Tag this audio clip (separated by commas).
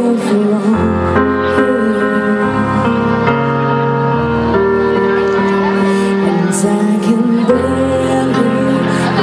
Speech, Music